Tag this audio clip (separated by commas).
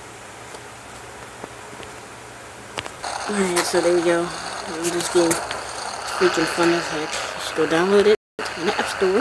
Speech